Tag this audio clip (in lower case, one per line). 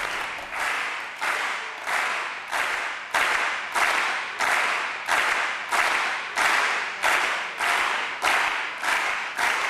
applause
people clapping